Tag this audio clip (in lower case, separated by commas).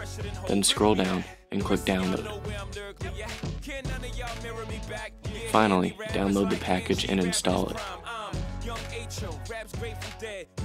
speech, music